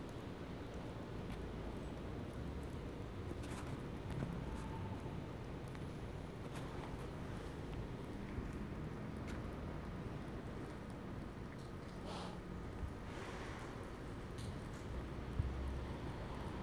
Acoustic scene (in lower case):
residential area